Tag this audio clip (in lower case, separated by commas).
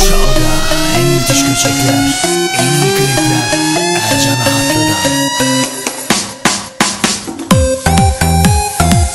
music, electronic music, electronic dance music